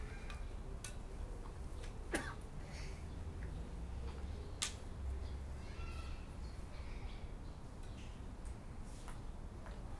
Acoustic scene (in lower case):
park